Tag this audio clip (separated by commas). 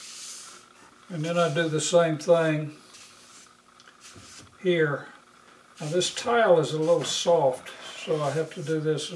Rub